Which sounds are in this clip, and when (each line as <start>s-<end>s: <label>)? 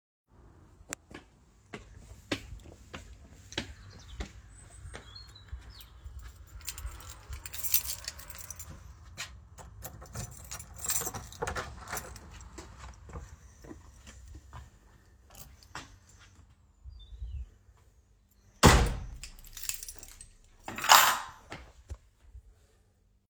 1.0s-6.5s: footsteps
6.5s-8.9s: keys
9.1s-9.4s: footsteps
9.5s-12.4s: door
10.1s-12.1s: keys
12.3s-16.4s: footsteps
18.5s-19.2s: door
19.2s-21.4s: keys